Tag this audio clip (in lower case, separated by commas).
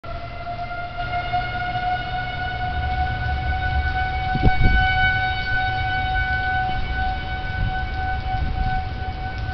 train horn, civil defense siren, siren